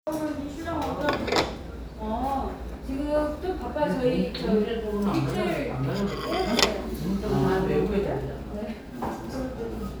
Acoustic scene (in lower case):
restaurant